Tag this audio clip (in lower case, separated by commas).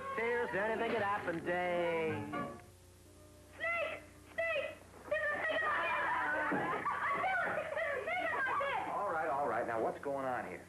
music, speech